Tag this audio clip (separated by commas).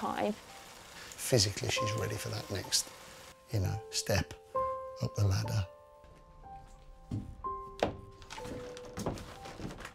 Bicycle, Speech, Vehicle, Music